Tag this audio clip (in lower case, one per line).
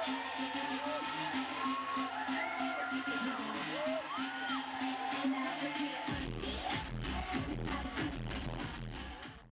music